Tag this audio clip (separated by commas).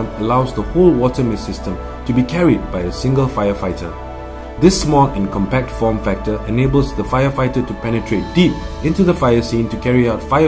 Music, Speech